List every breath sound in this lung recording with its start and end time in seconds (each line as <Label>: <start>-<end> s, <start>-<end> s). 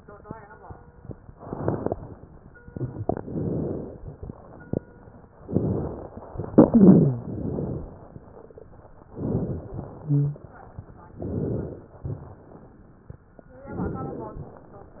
Inhalation: 3.23-3.99 s, 5.45-6.30 s, 7.30-8.14 s, 9.11-9.83 s, 11.14-11.94 s, 13.76-14.67 s
Exhalation: 6.41-7.27 s, 9.83-10.51 s
Wheeze: 6.60-7.27 s, 10.04-10.46 s